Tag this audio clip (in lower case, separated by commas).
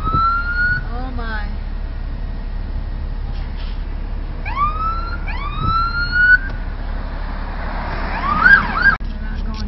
emergency vehicle, police car (siren), siren